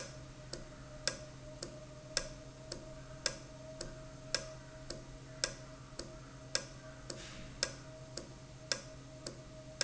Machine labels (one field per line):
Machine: valve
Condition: normal